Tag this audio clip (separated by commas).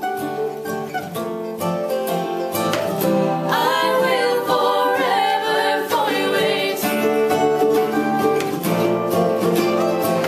Musical instrument, Music, Acoustic guitar, Guitar, Singing, Plucked string instrument, Flamenco